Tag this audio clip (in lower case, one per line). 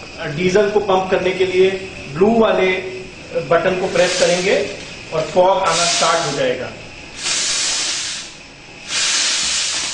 speech